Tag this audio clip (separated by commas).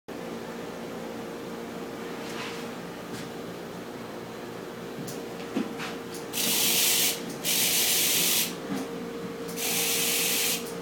Spray